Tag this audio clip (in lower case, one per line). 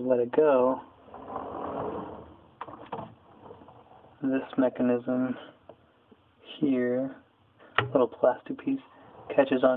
drawer open or close
speech